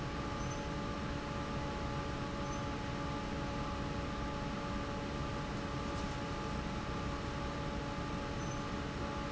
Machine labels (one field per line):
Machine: fan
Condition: normal